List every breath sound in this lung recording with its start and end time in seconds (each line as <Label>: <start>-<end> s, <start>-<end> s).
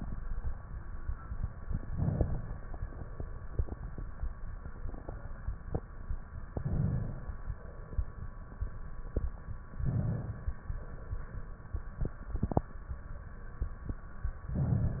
Inhalation: 1.75-2.70 s, 6.57-7.51 s, 9.66-10.61 s
Crackles: 1.75-2.70 s, 6.57-7.51 s, 9.66-10.61 s